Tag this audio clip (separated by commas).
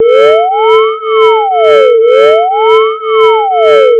Alarm